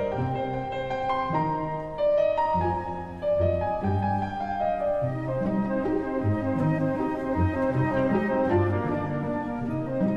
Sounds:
music
orchestra

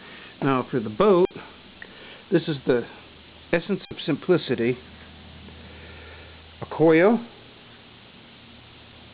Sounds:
speech

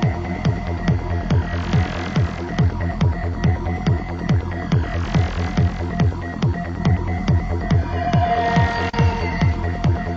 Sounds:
music
sound effect

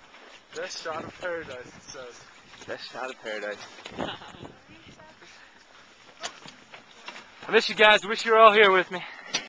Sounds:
speech

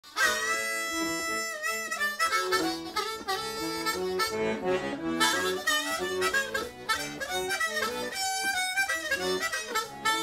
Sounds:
harmonica
musical instrument
accordion
music

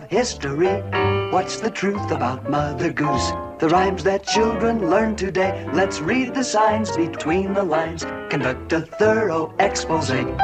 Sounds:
music

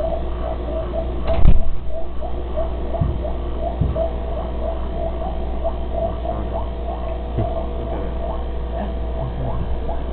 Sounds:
speech

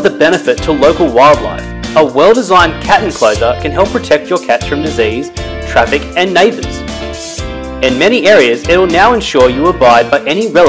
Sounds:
music
speech

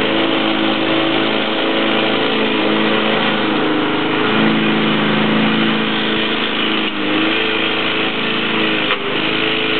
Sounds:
lawn mower
lawn mowing
engine

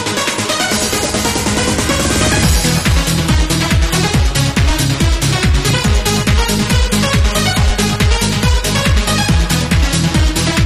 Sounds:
sampler
music

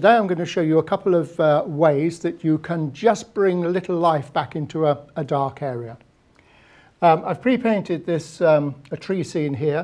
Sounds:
speech

